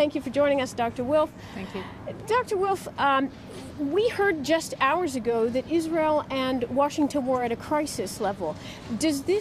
A woman speaking, another women responding, first women speaking again